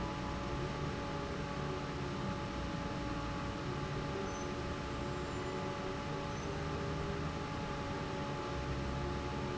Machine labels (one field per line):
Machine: fan